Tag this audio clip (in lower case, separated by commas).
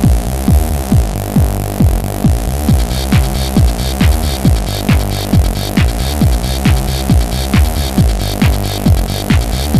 techno